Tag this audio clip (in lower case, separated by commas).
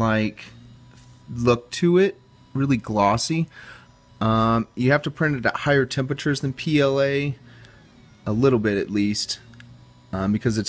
printer, speech